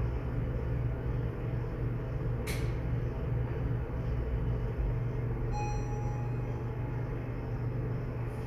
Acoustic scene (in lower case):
elevator